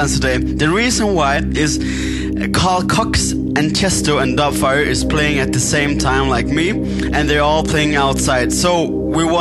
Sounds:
music
speech

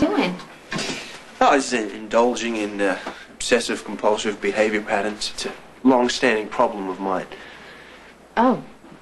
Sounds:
speech

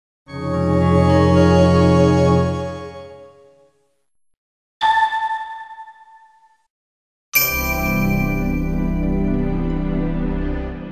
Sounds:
music

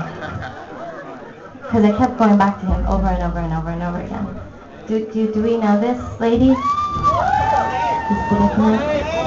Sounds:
speech

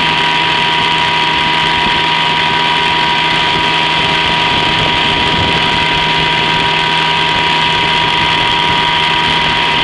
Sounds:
boat
motorboat

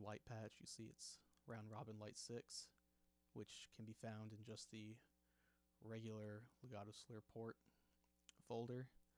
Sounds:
speech

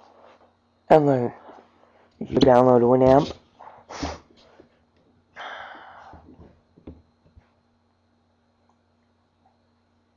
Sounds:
speech

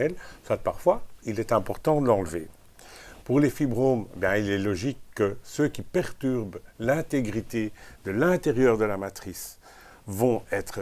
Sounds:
speech

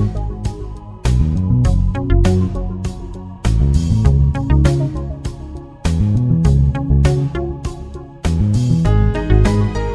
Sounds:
music

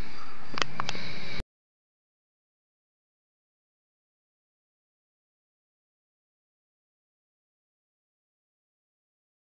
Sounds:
swoosh

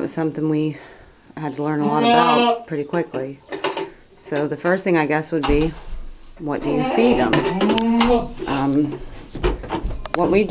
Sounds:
goat
speech
animal

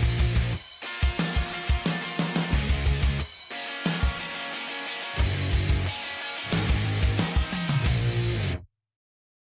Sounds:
music

